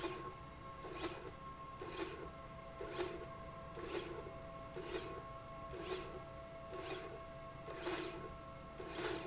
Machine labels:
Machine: slide rail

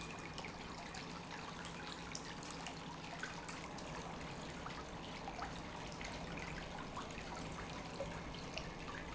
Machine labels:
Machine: pump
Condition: normal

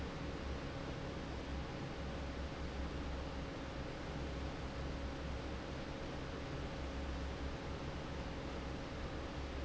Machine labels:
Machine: fan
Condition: normal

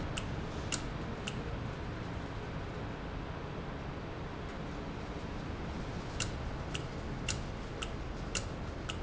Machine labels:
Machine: valve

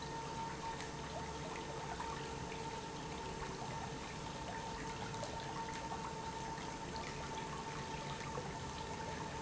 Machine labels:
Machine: pump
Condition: normal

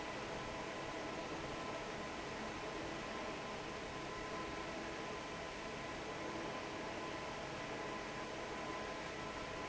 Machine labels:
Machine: fan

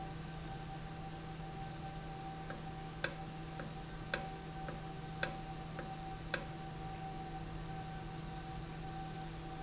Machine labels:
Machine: valve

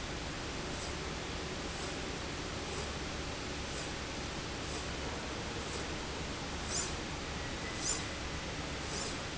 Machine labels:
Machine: slide rail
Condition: normal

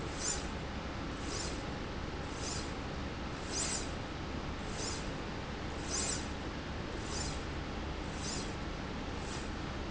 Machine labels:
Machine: slide rail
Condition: normal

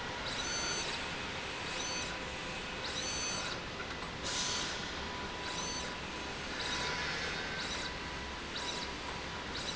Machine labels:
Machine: slide rail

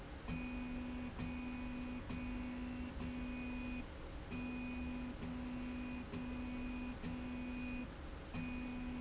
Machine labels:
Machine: slide rail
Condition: normal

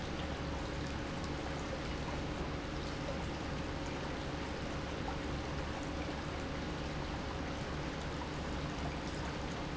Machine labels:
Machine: pump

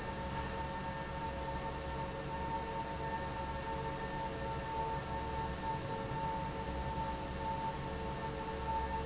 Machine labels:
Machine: fan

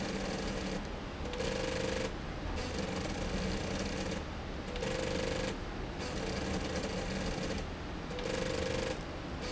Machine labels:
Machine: slide rail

